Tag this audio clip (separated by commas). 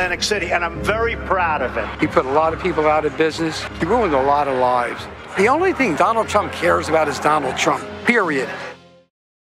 Speech, Music